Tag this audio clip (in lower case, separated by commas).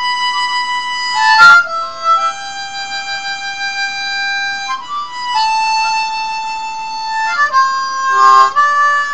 playing harmonica